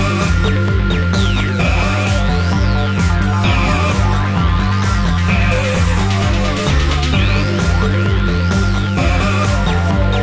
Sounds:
Video game music, Music

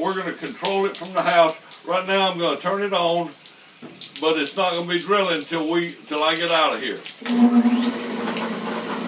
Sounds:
inside a large room or hall, Speech

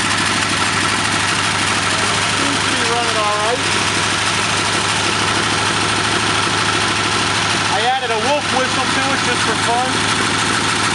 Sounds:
car engine starting

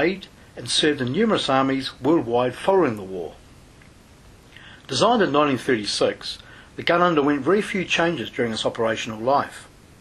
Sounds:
Speech

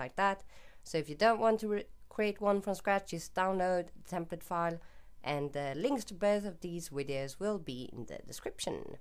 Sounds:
Speech

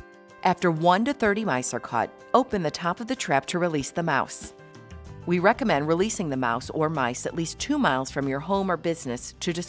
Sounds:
Music, Speech

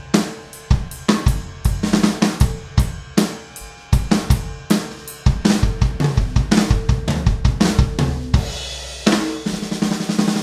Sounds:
Musical instrument, Drum kit, playing drum kit, Music, Bass drum, Drum

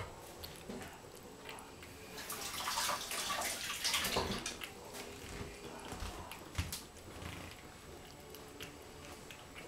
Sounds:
Music, inside a small room

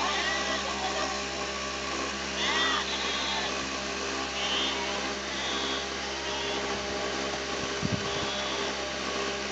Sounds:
Sheep, Bleat, Speech

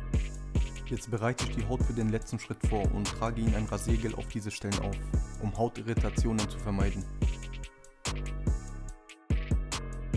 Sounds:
cutting hair with electric trimmers

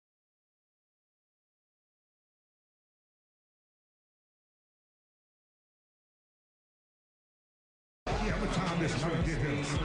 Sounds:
Speech

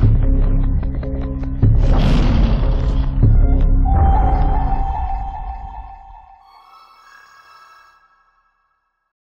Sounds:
Music

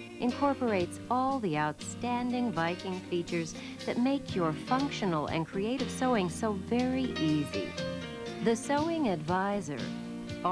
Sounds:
Music, Speech

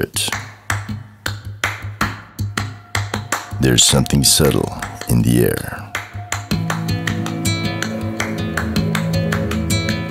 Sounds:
Speech, Music

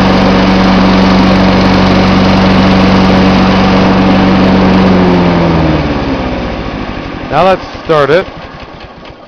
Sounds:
Light engine (high frequency), Speech, Lawn mower, Engine

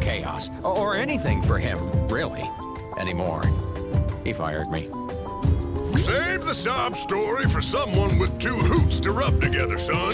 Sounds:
Speech, Music

